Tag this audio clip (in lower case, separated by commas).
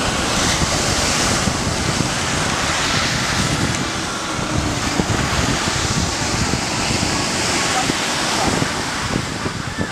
outside, rural or natural, music, speech